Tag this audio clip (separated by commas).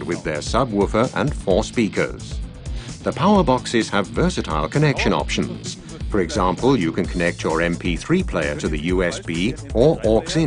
Music, Speech